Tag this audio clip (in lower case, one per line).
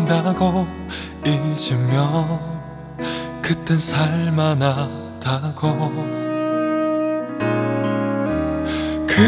music
background music